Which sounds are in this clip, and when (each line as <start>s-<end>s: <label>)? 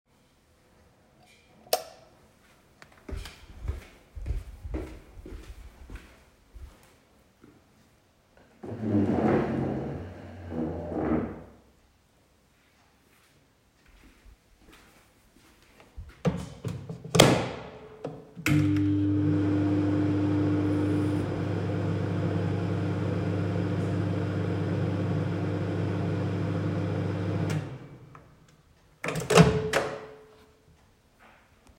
1.4s-2.1s: light switch
2.6s-8.4s: footsteps
12.0s-15.9s: footsteps
16.0s-30.5s: microwave